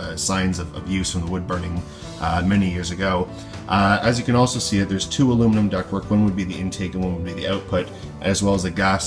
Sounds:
Speech, Music

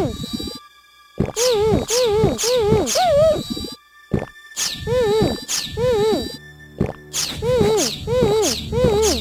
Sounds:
Music

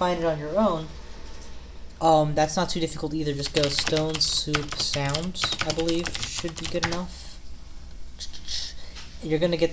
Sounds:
Speech

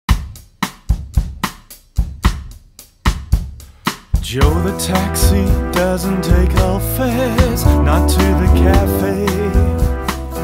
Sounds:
Percussion, Bass drum, Drum kit, Snare drum, Rimshot, Drum

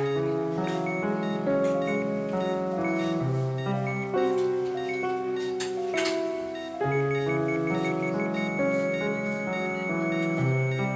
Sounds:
Music

